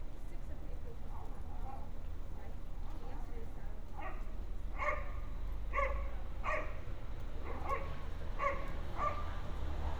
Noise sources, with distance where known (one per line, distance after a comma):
engine of unclear size, near
person or small group talking
dog barking or whining, near